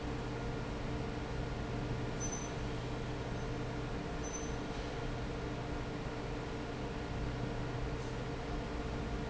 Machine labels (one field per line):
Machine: fan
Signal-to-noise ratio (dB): -6 dB